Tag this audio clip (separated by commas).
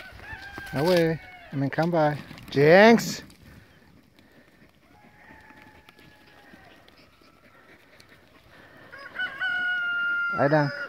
livestock, Domestic animals, Animal